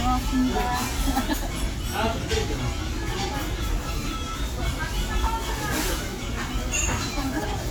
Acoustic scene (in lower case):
restaurant